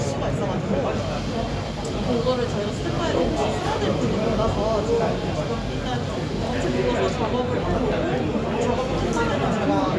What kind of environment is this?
crowded indoor space